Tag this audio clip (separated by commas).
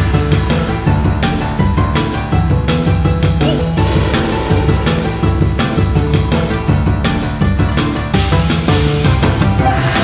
Music